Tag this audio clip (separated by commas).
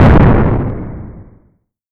Explosion